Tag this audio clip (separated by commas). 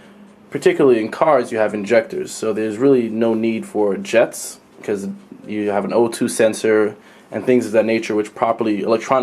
Speech